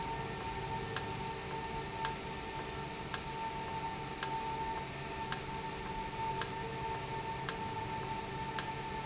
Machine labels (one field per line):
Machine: valve